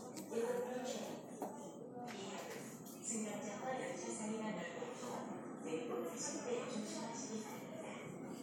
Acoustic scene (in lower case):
subway station